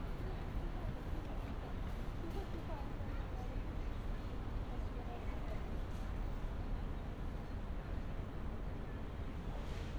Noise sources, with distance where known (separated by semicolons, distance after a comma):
person or small group talking, far